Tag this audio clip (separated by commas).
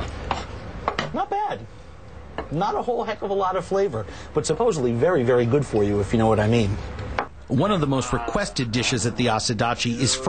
Speech